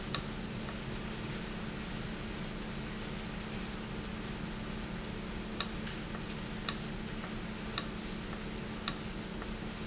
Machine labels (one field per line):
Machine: valve